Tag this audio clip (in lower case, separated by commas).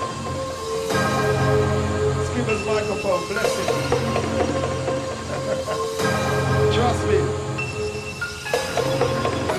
speech, music